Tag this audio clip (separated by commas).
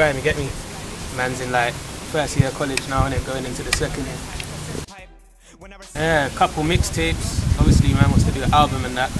Music, Speech